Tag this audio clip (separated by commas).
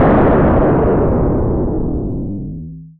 Explosion